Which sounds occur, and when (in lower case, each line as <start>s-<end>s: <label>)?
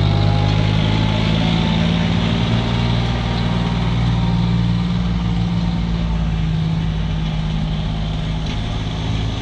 0.0s-9.4s: truck
3.3s-3.4s: generic impact sounds